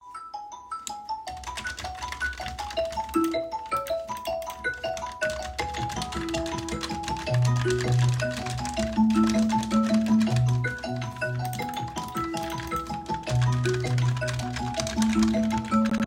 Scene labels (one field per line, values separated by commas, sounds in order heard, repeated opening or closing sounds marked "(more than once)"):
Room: office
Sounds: keyboard typing, phone ringing